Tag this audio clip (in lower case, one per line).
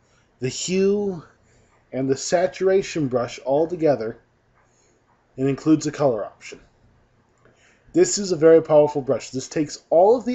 speech